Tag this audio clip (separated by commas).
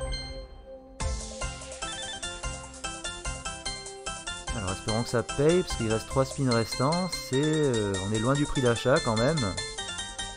slot machine